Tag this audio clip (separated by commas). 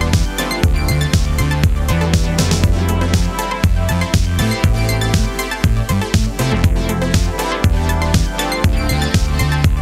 Music